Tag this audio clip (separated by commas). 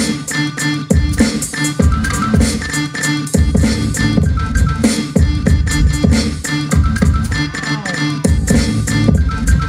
Beatboxing